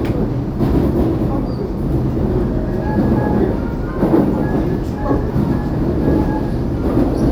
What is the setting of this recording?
subway train